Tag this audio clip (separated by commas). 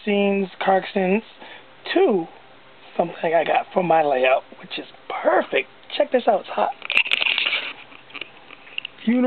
Speech